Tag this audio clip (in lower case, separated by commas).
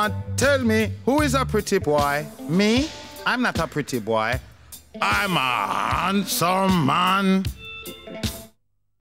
speech, music